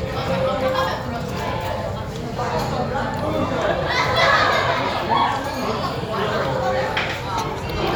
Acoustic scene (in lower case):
restaurant